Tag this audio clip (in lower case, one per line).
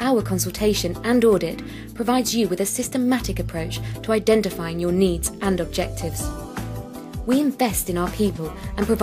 music
speech